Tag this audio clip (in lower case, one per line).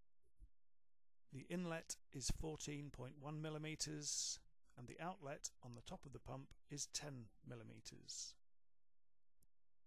speech